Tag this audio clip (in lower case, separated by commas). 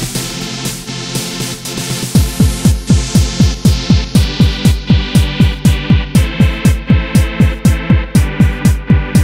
techno, music